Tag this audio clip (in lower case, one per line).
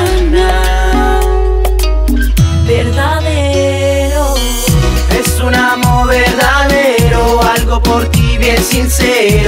music